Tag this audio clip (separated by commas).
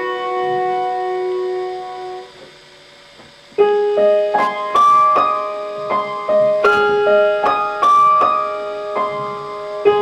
playing piano, Classical music, Piano, Music, Keyboard (musical), Musical instrument